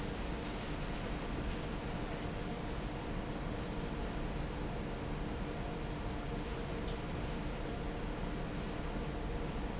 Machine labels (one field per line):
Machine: fan